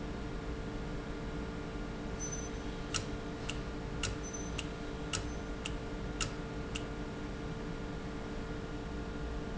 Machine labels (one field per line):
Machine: valve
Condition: normal